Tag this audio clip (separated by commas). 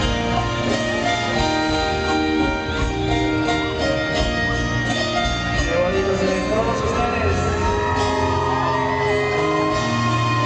Speech, Music